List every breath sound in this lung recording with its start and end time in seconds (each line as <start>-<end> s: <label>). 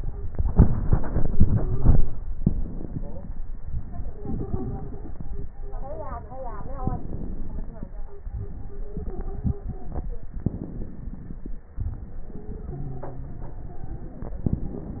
0.86-2.10 s: stridor
3.97-5.21 s: stridor
8.80-10.32 s: stridor
12.29-13.40 s: wheeze